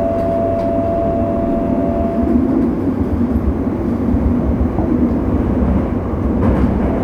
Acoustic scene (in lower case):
subway train